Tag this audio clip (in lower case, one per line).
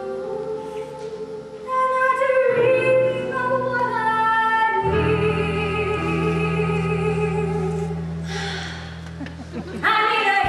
music